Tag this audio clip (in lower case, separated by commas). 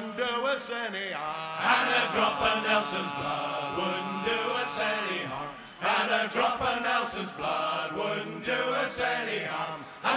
singing